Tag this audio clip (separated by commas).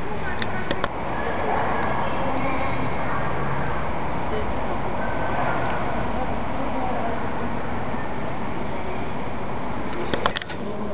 Speech